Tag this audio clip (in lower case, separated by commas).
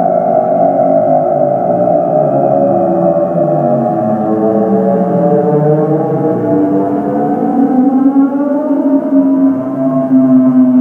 synthesizer, music